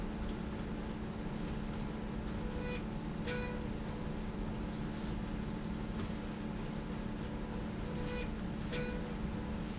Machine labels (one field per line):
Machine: slide rail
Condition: normal